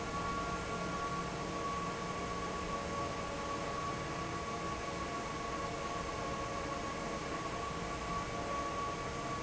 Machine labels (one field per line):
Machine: fan